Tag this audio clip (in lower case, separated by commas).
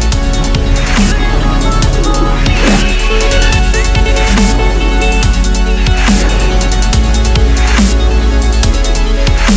music, dubstep, electronic music